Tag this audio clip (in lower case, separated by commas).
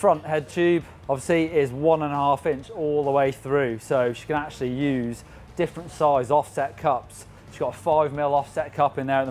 speech, music